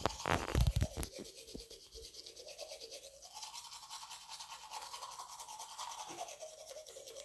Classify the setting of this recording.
restroom